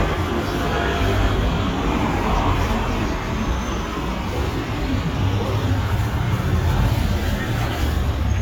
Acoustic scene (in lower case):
street